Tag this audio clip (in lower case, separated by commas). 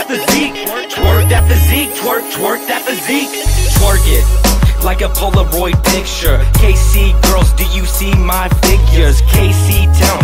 music, blues